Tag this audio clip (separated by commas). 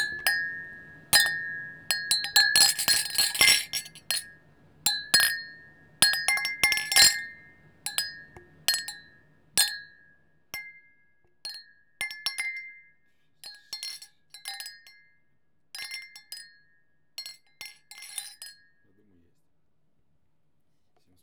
Glass, Chink